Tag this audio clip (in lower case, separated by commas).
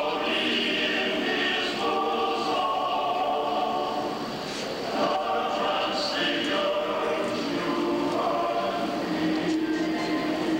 singing choir